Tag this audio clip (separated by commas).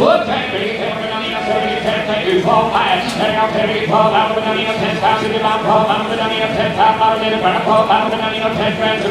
Speech